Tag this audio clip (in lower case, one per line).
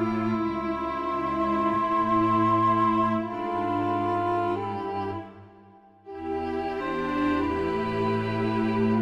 music